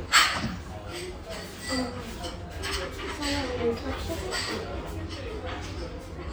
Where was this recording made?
in a restaurant